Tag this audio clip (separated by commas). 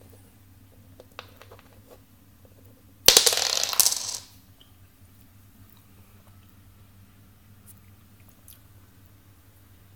inside a small room